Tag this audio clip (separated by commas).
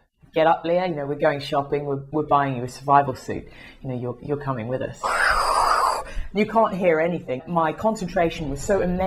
Speech